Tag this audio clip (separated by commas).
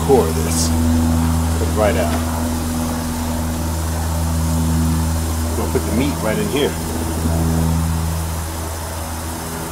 Vehicle, Speech